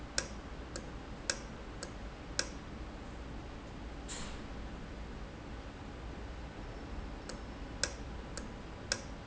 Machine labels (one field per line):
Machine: valve